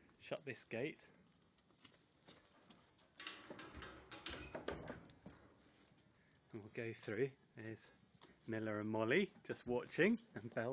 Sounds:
speech

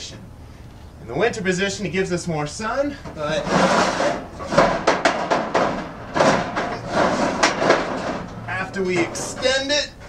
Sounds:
speech
outside, urban or man-made

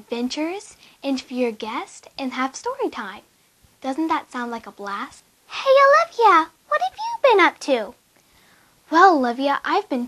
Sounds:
speech

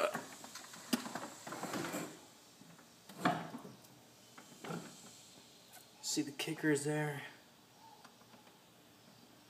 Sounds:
speech

